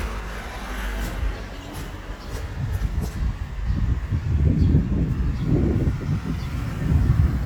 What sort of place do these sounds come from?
residential area